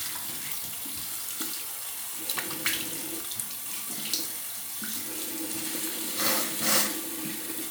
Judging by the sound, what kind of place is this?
restroom